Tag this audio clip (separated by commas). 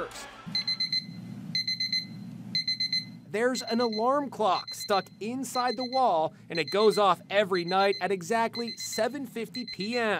alarm clock ringing